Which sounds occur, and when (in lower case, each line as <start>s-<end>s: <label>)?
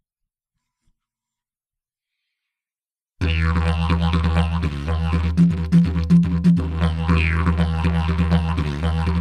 0.1s-2.0s: background noise
1.9s-2.7s: breathing
3.1s-9.2s: music
3.2s-9.2s: male singing